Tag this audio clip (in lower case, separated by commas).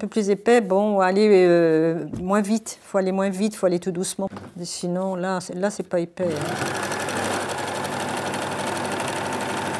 using sewing machines